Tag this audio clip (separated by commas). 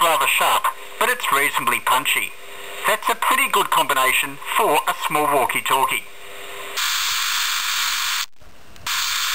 Speech, Radio